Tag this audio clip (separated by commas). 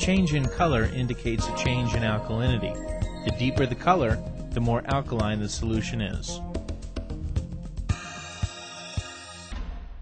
Speech, Music